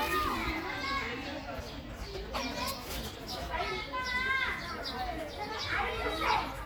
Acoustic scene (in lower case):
park